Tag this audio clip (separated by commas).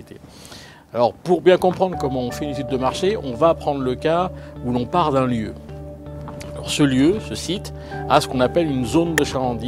Music, Speech